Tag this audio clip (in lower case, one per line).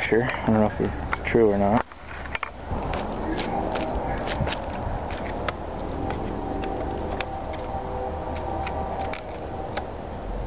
walk
speech
outside, urban or man-made